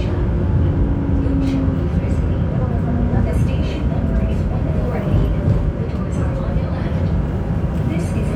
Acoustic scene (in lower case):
subway train